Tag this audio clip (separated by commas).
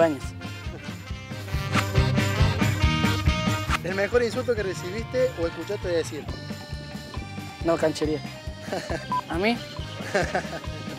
Music, Speech